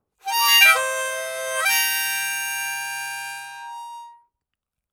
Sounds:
musical instrument
music
harmonica

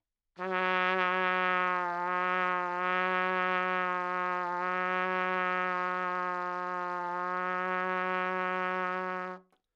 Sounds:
musical instrument
trumpet
brass instrument
music

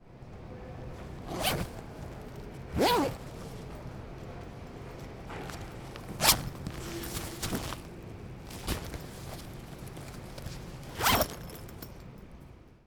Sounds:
zipper (clothing)
home sounds

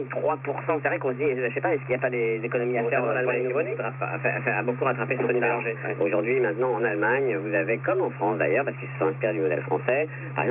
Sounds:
human voice
conversation
speech

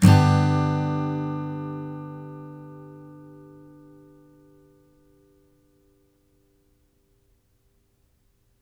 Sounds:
strum
acoustic guitar
plucked string instrument
music
musical instrument
guitar

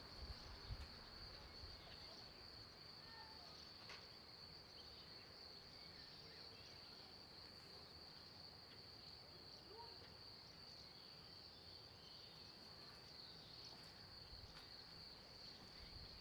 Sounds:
human voice
man speaking
speech

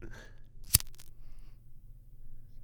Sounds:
fire

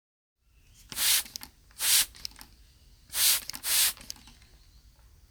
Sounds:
hiss

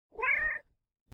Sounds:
pets
cat
animal
meow

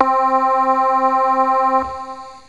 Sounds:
keyboard (musical)
music
musical instrument

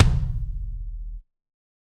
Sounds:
drum
musical instrument
music
percussion
bass drum

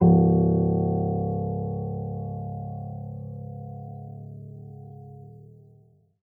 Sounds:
keyboard (musical)
piano
music
musical instrument

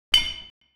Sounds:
clink
glass

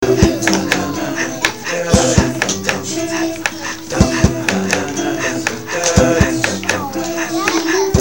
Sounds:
guitar
music
acoustic guitar
plucked string instrument
human voice
musical instrument

